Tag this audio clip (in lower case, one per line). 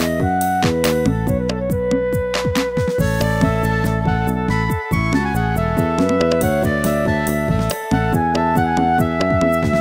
music